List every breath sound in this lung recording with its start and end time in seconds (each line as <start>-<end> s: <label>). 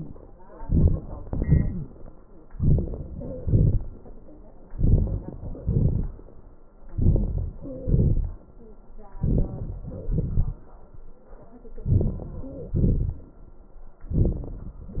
0.59-1.00 s: inhalation
1.27-1.86 s: exhalation
2.49-3.07 s: inhalation
3.12-3.41 s: wheeze
3.41-3.78 s: exhalation
4.71-5.18 s: inhalation
5.66-6.08 s: exhalation
6.95-7.40 s: inhalation
7.59-8.09 s: wheeze
7.86-8.32 s: exhalation
9.20-9.50 s: inhalation
10.08-10.44 s: exhalation
11.88-12.21 s: inhalation
12.76-13.20 s: exhalation
14.12-14.45 s: inhalation